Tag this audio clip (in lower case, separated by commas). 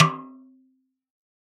drum, musical instrument, music, percussion, snare drum